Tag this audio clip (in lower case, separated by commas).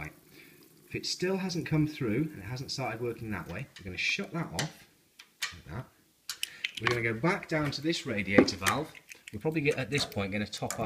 speech